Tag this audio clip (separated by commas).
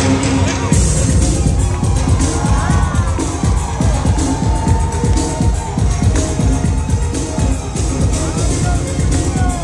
Music